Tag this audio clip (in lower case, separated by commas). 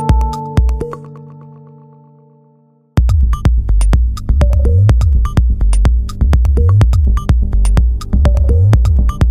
music